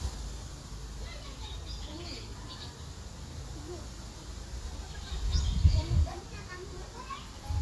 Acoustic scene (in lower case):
park